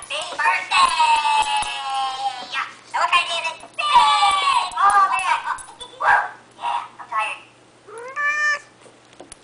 People speaking animal barking cat meow